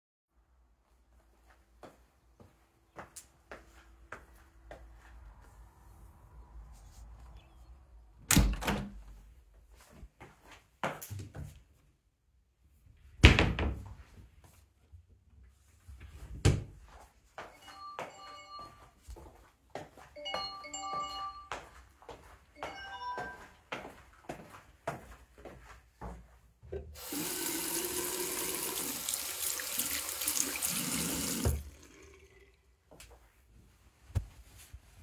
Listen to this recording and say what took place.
One could hear birds chirping outside. I closed the window in the bedroom. I walked towards the wardrobe. Then I opened and closed one drawer and then a second drawer. While I walked away from the drawer, the phone rang. I entered the bathroom and turned on the faucet and water started running. I dried my hands with a towel.